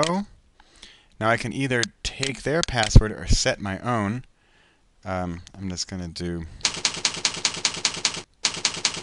A man is speaking with clicking background noises followed by computer keyboard typing